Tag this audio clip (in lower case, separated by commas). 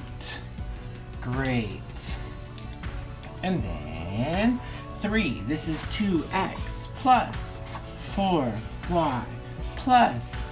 speech, music, inside a small room